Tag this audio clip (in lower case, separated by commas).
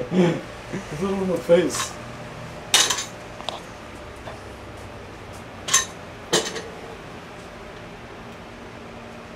speech, inside a large room or hall